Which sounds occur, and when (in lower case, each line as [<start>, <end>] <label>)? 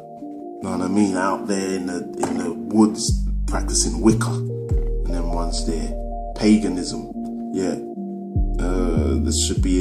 [0.01, 9.80] music
[0.50, 3.12] male speech
[3.48, 4.36] male speech
[4.92, 6.00] male speech
[6.27, 7.10] male speech
[7.48, 7.78] male speech
[9.16, 9.80] male speech